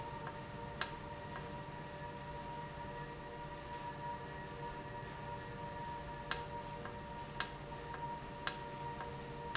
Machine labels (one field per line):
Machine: valve